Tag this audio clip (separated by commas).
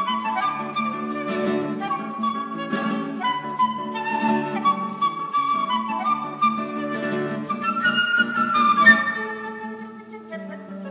Strum, Plucked string instrument, Acoustic guitar, Music, Guitar, Musical instrument